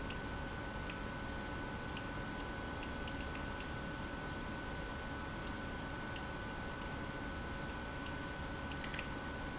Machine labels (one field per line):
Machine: pump